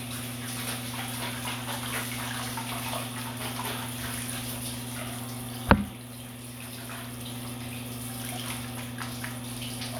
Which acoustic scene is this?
restroom